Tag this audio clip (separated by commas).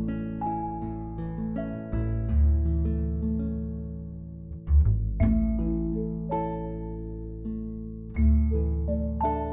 Music